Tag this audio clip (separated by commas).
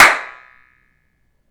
Hands, Clapping